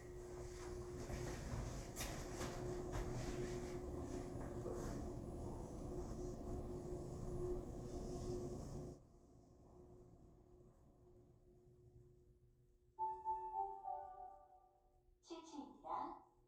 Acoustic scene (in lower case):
elevator